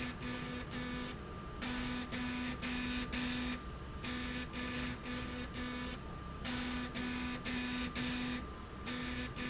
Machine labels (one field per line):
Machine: slide rail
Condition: abnormal